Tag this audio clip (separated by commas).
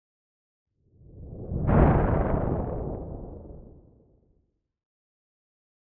Thunderstorm, Thunder